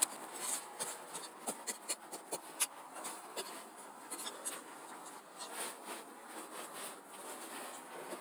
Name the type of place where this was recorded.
street